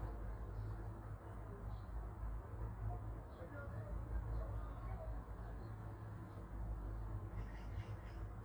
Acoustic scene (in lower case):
park